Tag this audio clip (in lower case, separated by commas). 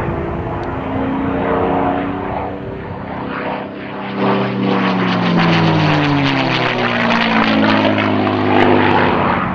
airplane flyby